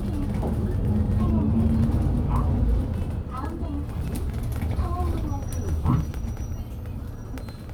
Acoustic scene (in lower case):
bus